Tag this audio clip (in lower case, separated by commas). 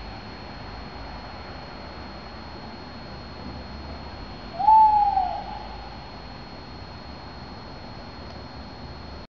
owl, hoot